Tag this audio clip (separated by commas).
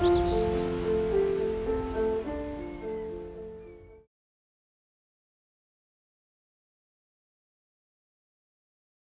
tweet, Music